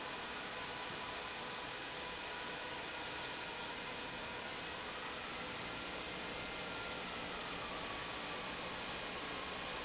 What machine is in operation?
pump